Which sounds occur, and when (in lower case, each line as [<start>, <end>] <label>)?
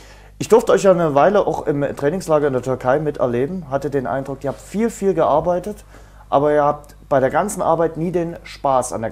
[0.00, 0.32] breathing
[0.00, 9.11] background noise
[0.38, 5.83] man speaking
[5.90, 6.31] breathing
[6.32, 6.91] man speaking
[7.10, 9.11] man speaking